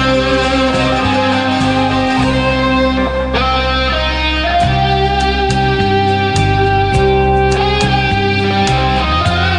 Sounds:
Guitar, Music, Musical instrument

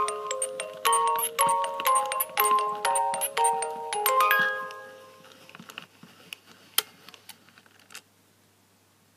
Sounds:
Tender music, Music

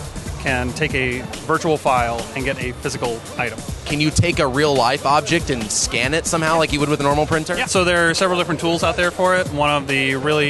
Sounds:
Speech, Music

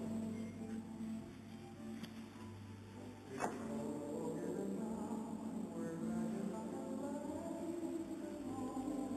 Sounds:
Speech, Music

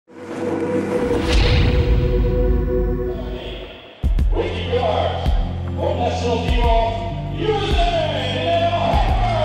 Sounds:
Music, Speech

